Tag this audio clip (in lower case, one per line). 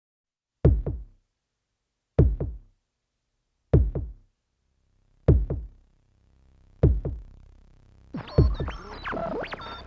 drum machine
music